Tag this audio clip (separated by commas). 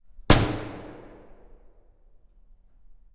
Door, Domestic sounds, Slam